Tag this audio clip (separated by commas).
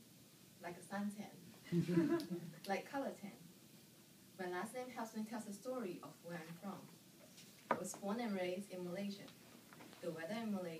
Speech, Female speech, monologue